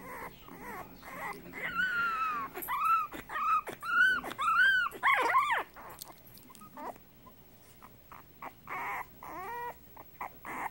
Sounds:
Whimper (dog), Domestic animals, Animal

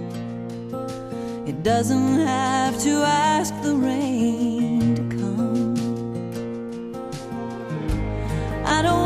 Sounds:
Music

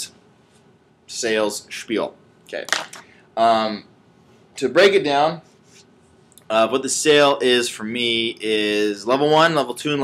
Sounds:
Speech

